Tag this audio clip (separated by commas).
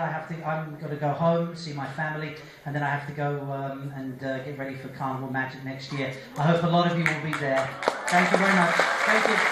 man speaking, Speech, Narration